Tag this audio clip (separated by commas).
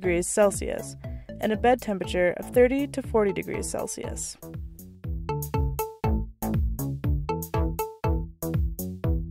Music, Speech